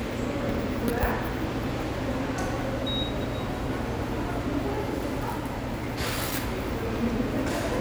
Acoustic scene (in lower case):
subway station